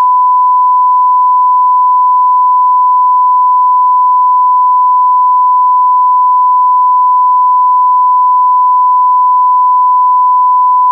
Constant beeping sound